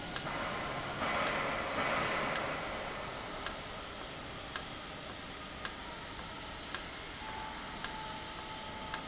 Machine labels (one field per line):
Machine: valve